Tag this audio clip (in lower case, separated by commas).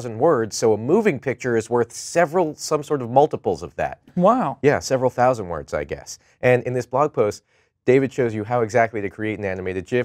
speech